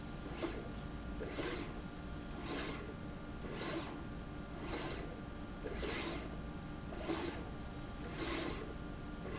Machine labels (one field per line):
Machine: slide rail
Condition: abnormal